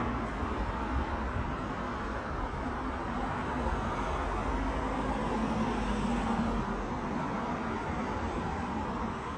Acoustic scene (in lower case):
street